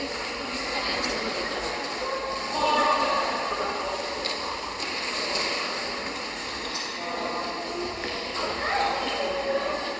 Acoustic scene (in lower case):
subway station